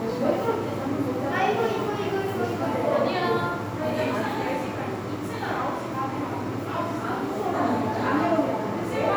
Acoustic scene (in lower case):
crowded indoor space